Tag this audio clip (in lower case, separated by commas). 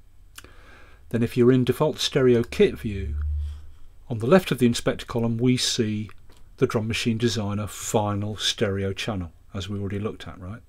speech